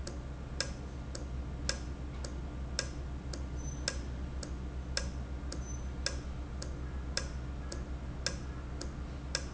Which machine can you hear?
valve